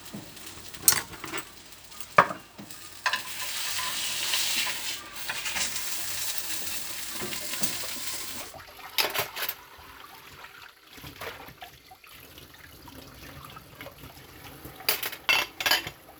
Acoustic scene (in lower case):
kitchen